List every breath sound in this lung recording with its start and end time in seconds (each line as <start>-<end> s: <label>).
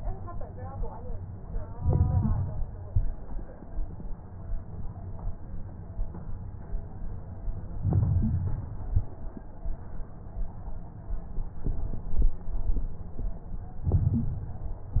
1.73-2.69 s: crackles
1.75-2.71 s: inhalation
2.89-3.36 s: exhalation
2.89-3.36 s: crackles
7.83-8.80 s: inhalation
7.83-8.80 s: crackles
8.85-9.33 s: exhalation
8.85-9.33 s: crackles
13.87-14.84 s: inhalation
13.87-14.84 s: crackles